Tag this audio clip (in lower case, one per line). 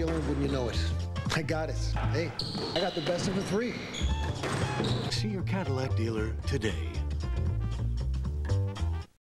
music
speech